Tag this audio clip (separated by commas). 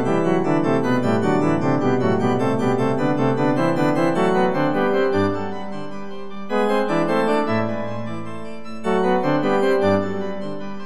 Music